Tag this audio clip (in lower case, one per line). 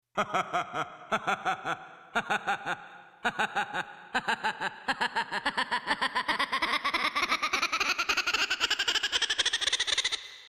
human voice
laughter